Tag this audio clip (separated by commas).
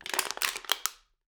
Crushing